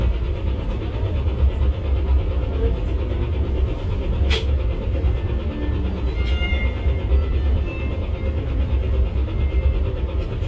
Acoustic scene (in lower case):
bus